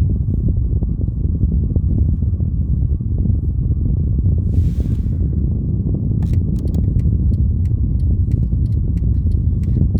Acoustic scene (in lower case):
car